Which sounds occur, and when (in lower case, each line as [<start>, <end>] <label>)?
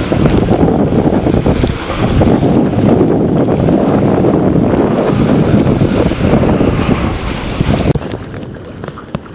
[0.00, 7.91] wind noise (microphone)
[0.00, 9.34] motorboat
[0.00, 9.34] wind
[0.28, 0.54] tick
[1.55, 1.64] tick
[4.92, 5.04] tick
[7.94, 8.43] generic impact sounds
[8.80, 8.93] generic impact sounds
[9.07, 9.21] generic impact sounds